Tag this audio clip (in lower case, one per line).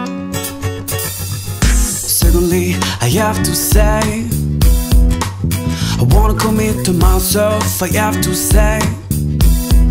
music
blues